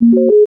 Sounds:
Alarm

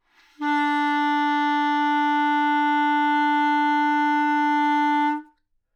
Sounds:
Musical instrument, Wind instrument, Music

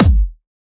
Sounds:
Musical instrument, Drum, Music, Bass drum, Percussion

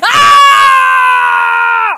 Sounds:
Screaming, Human voice

